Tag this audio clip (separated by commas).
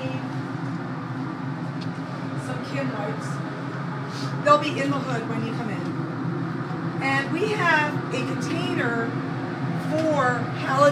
Speech